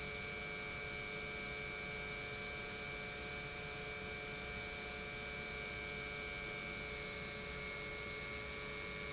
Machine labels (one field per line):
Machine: pump